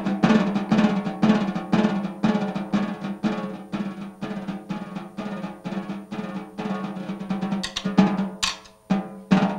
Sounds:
playing snare drum

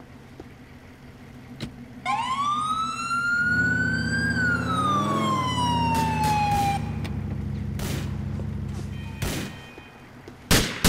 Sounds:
police car (siren)
siren
emergency vehicle

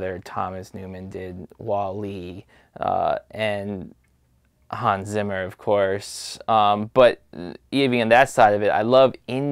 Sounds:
speech

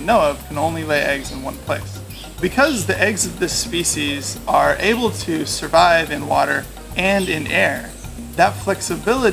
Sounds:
speech
music

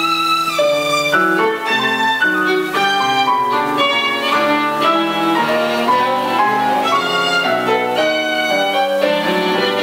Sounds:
musical instrument
music
fiddle

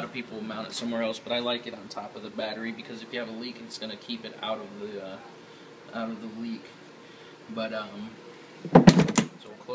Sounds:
speech

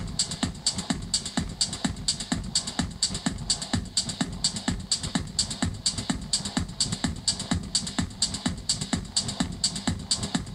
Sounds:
music

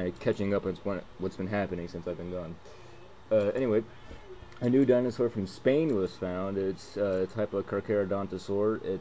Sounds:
speech

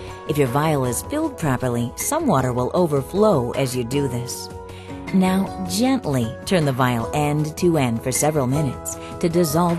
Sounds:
music
speech

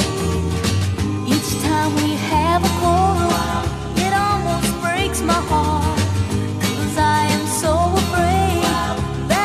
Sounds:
music
soul music

